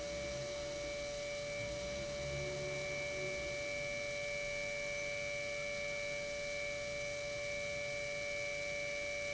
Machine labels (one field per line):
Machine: pump